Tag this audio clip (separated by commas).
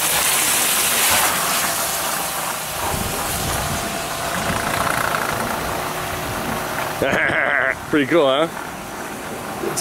Water